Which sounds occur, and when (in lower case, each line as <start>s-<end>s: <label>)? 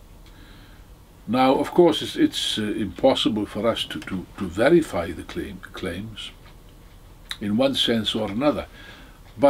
0.0s-9.4s: background noise
0.2s-1.0s: breathing
1.3s-6.5s: male speech
7.3s-8.6s: male speech
8.7s-9.2s: breathing